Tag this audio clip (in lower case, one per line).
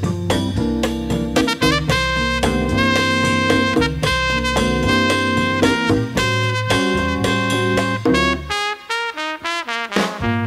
music
trombone